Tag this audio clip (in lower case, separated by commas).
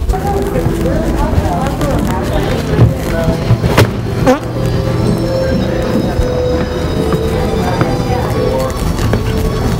people farting